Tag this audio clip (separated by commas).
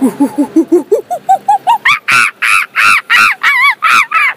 Animal